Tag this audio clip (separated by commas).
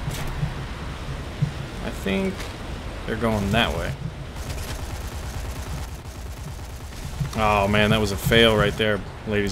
Speech